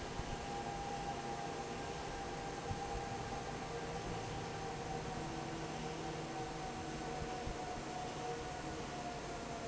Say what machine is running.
fan